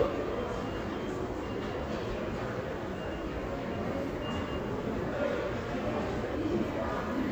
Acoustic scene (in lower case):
crowded indoor space